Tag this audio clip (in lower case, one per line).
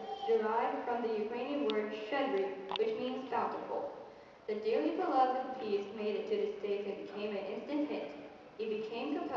speech